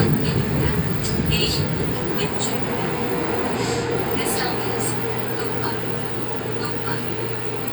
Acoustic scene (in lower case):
subway train